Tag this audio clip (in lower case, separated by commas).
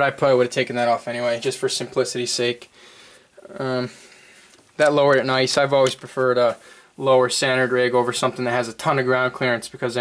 speech